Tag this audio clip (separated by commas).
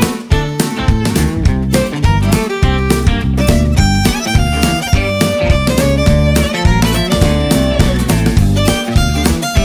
fiddle, Bowed string instrument